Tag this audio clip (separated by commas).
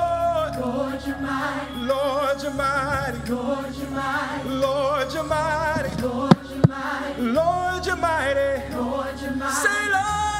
Music